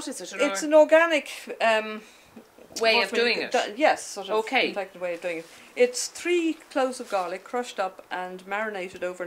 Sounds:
Speech

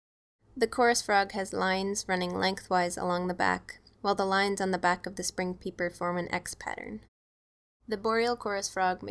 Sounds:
Speech

